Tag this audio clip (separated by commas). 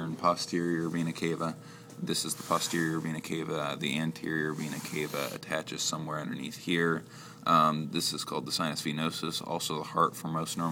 Speech